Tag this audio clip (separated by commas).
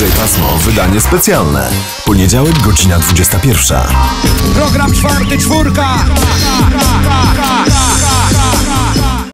Sound effect, Music, Speech